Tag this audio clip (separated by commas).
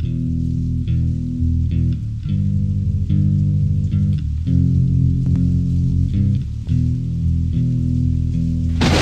Music